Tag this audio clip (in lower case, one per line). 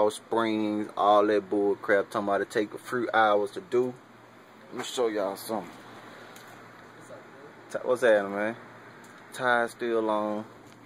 speech